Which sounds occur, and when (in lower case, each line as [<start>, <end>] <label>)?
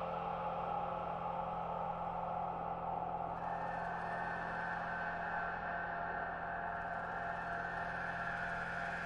[0.00, 9.05] sound effect